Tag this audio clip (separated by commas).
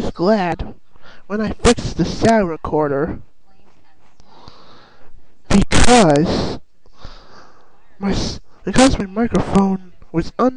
Speech